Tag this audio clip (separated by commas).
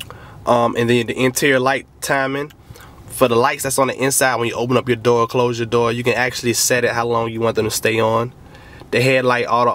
Speech